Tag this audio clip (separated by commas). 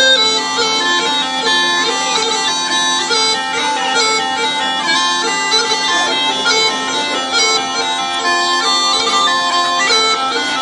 Music